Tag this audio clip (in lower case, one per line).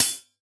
music
hi-hat
musical instrument
cymbal
percussion